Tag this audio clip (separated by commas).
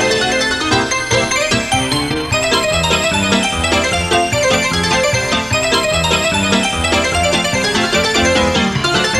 Music